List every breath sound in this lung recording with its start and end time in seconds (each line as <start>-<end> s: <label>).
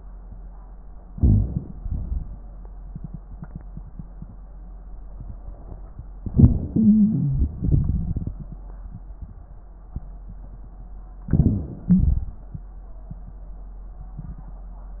1.06-1.80 s: crackles
1.08-1.80 s: inhalation
1.81-2.53 s: exhalation
6.22-7.54 s: inhalation
6.22-7.54 s: wheeze
7.57-8.56 s: exhalation
7.57-8.56 s: crackles
11.29-12.06 s: inhalation
11.29-12.06 s: wheeze
12.09-12.86 s: exhalation